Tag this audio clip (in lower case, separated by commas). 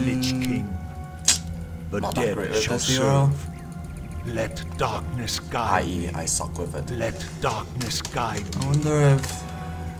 speech